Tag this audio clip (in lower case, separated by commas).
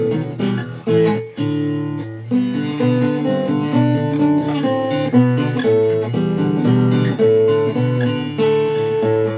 strum, acoustic guitar, guitar, musical instrument, music, plucked string instrument